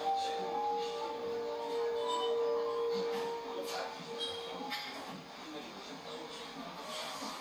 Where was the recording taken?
in a cafe